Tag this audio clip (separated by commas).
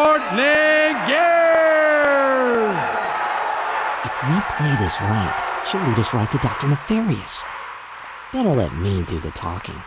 Speech